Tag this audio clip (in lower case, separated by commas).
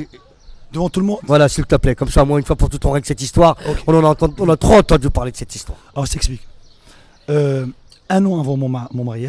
speech